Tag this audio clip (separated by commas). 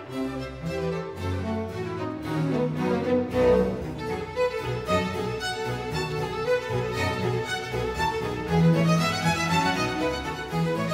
Musical instrument, Music, fiddle